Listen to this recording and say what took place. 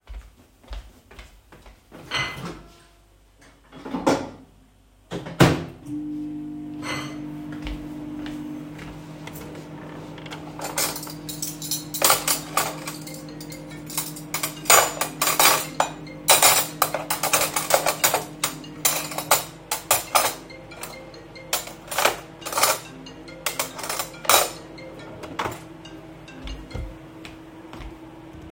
I walked towards my microwave, opened and closed it, started it. After that I walked towards my kitchen drawer and opened it to sort some cutlery. While sorting cutlery my phone started ringing so I closed the drawer after a short time of letting it ring and walked towards my phone.